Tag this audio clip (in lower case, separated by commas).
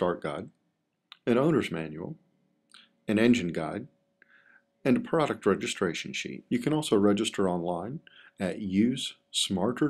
speech